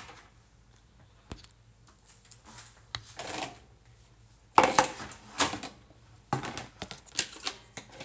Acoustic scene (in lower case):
kitchen